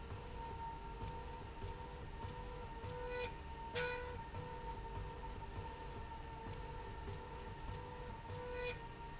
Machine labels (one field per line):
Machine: slide rail